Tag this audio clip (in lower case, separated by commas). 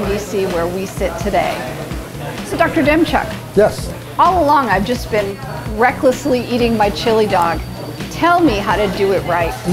music, speech